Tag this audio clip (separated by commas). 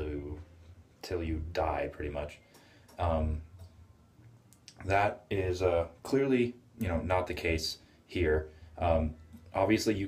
inside a small room, Speech